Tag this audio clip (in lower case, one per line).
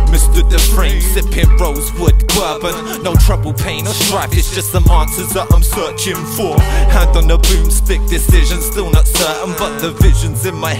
music
pop music
jazz